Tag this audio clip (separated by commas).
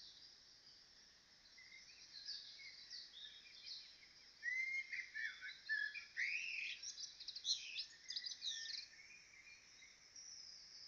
Animal, Chirp, Bird